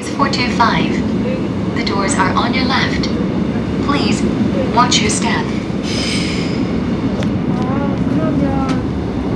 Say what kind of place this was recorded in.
subway train